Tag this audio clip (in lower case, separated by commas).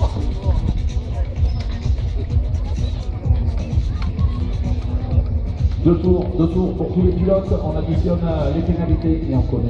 music, speech